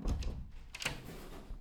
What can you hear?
wooden door opening